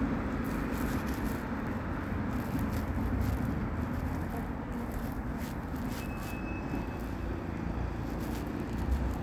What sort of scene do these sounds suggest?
residential area